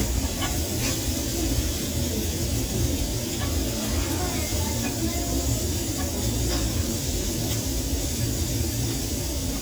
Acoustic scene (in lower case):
restaurant